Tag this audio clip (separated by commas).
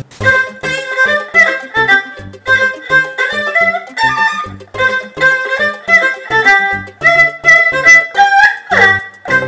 Music